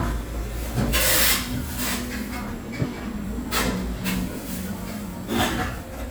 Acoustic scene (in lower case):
cafe